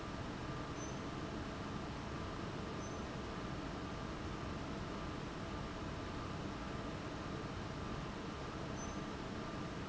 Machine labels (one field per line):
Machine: fan